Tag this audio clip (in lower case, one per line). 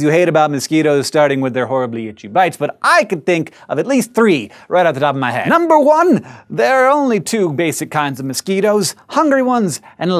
speech